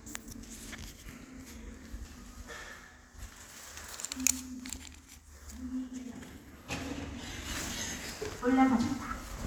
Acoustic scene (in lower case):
elevator